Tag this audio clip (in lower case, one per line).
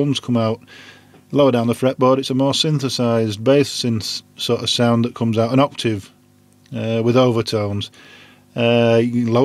speech